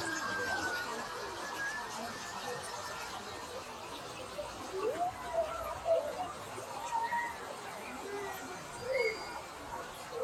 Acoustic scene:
park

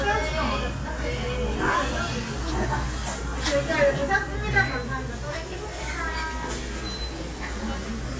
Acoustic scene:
crowded indoor space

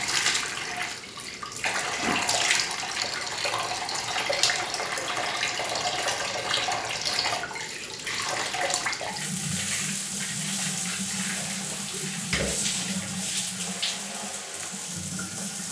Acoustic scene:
restroom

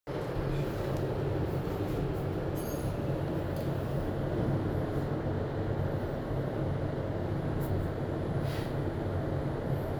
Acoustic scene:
elevator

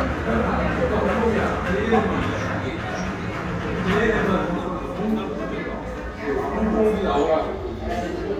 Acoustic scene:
crowded indoor space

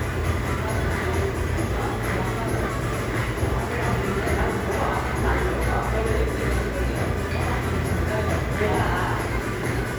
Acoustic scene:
crowded indoor space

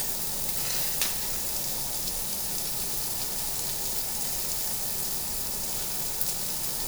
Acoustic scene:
restaurant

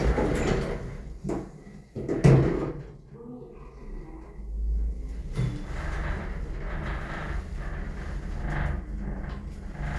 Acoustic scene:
elevator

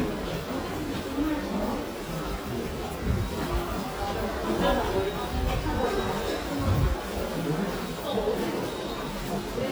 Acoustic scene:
subway station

